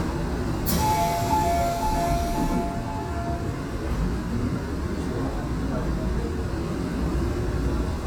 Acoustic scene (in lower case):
subway train